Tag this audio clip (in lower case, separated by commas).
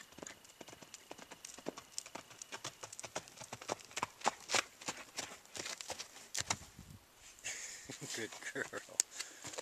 horse neighing